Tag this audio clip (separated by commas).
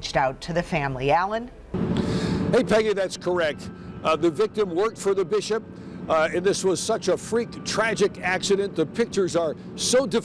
Motor vehicle (road), Speech, Vehicle, Car